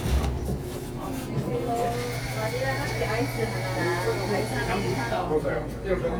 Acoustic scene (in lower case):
cafe